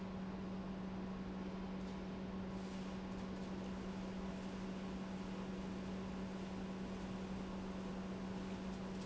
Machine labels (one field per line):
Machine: pump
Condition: normal